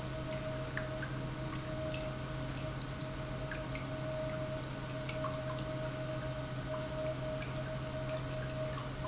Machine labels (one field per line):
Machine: pump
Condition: normal